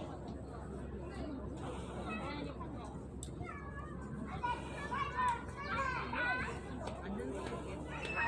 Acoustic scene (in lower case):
park